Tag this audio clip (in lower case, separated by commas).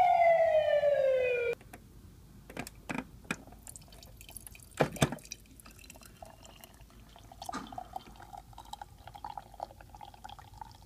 water tap